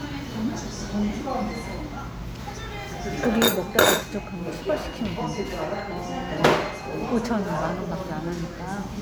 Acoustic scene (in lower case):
restaurant